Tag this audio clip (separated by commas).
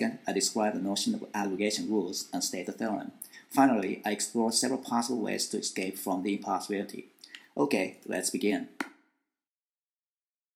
Speech